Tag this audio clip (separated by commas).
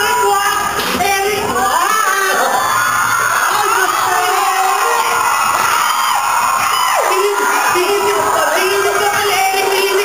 inside a large room or hall